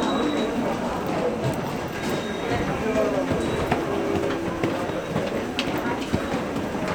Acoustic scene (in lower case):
subway station